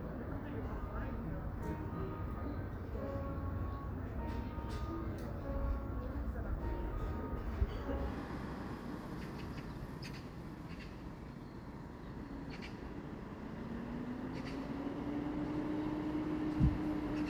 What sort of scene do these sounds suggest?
residential area